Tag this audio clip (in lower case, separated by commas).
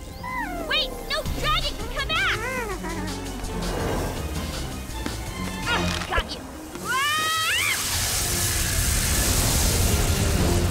speech, music